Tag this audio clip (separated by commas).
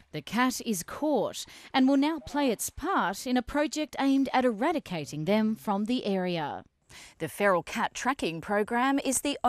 Speech